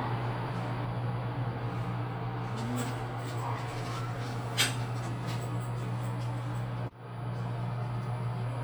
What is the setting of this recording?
elevator